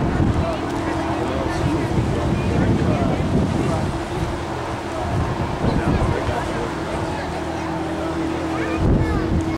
Wind blowing and people speaking